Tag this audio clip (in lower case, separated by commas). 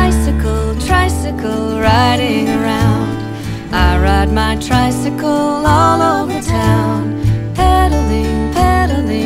music